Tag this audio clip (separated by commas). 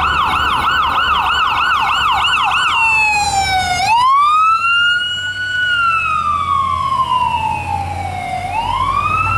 Siren, ambulance siren, Police car (siren), Ambulance (siren), Emergency vehicle